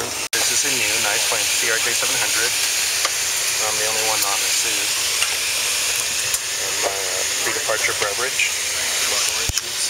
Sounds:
vehicle, speech, aircraft

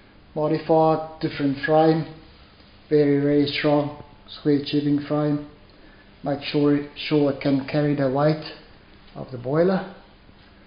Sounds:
speech

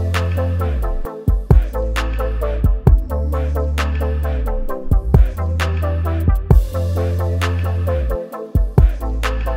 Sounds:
music

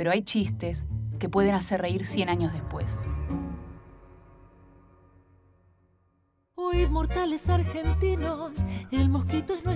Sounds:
music, speech

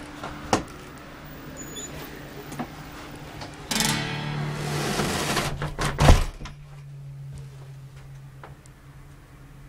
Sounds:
music

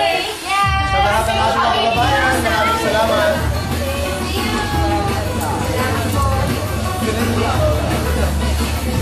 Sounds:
music, speech

